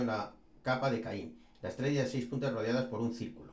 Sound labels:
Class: speech